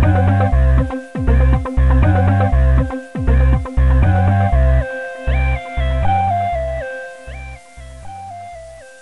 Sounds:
Music

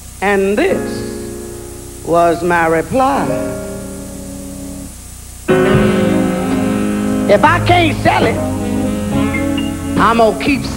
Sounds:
Music, Speech

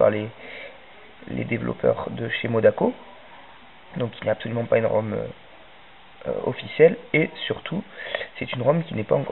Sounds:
Speech

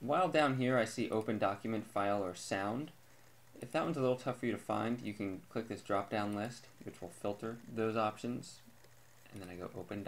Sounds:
Speech

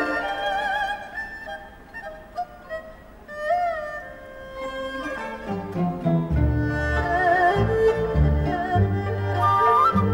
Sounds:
playing erhu

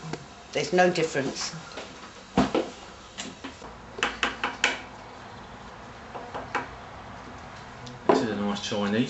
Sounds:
Tap, Speech

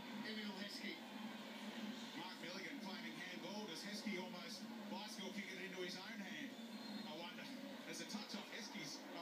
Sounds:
Speech

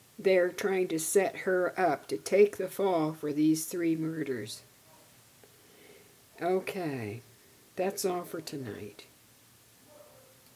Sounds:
Speech, inside a small room

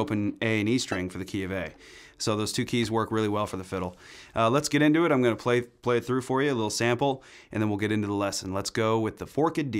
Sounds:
Speech

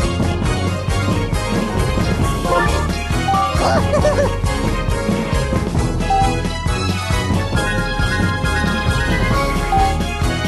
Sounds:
Music

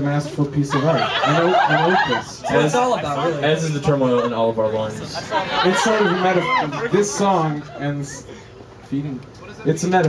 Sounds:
Speech

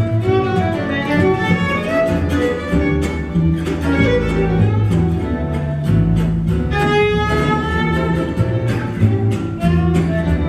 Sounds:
Musical instrument, fiddle, Music

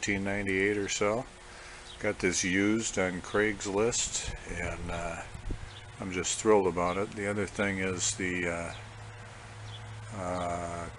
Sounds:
Speech

